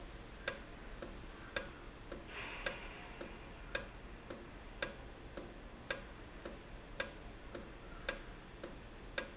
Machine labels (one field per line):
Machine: valve